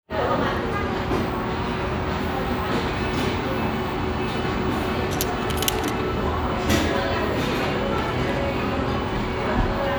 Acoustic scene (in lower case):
restaurant